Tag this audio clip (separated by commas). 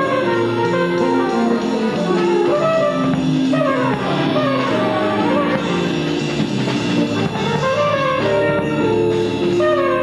Music, Jazz